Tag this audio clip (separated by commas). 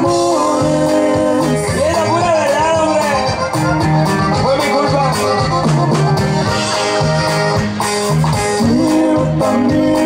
Music, Speech